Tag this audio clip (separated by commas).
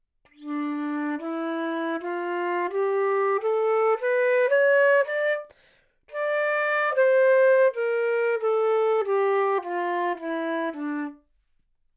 woodwind instrument, Music, Musical instrument